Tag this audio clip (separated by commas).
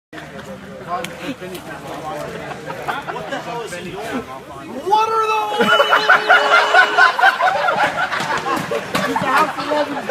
Snicker, people sniggering, Speech